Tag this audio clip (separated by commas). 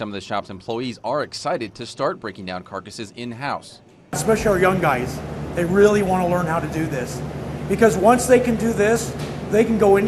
Speech